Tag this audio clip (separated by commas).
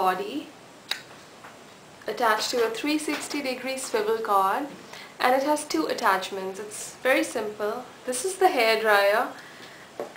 Speech